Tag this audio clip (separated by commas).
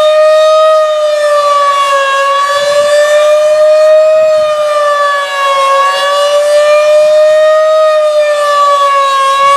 Siren